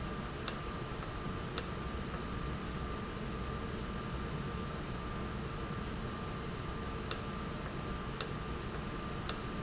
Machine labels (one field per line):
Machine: valve